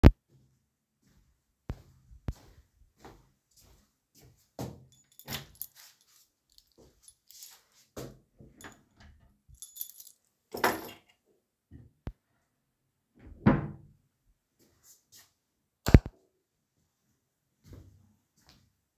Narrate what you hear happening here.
I walked to the door and pulled out the key. Then i walked to the wardrobe, opened it, placed the key in it and after that closed the door of the wardrobe. Finally i turned off the light swicht of the living room.